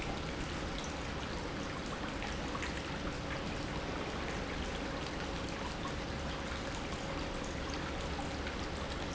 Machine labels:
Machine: pump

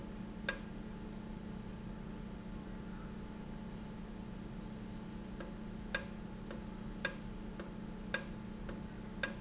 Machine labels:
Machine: valve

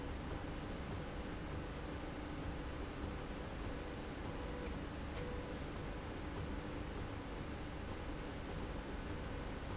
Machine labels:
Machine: slide rail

